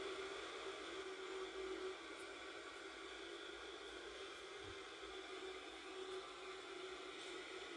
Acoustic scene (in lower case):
subway train